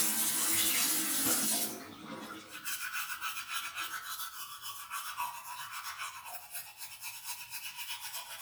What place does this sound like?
restroom